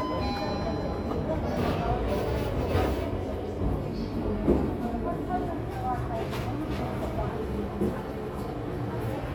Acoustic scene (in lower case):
crowded indoor space